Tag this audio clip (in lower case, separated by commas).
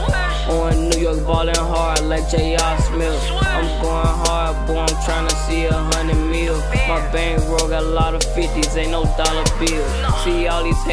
music